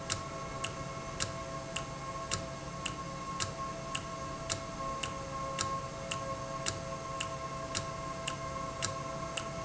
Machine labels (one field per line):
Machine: valve